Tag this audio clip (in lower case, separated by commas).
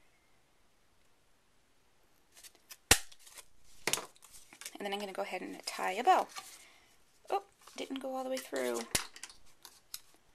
inside a small room, speech